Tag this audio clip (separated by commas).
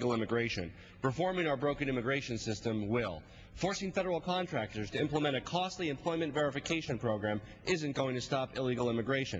monologue, Male speech, Speech